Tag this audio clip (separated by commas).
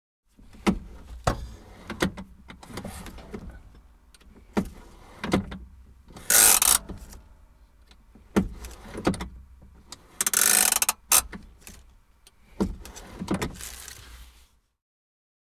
Motor vehicle (road), Vehicle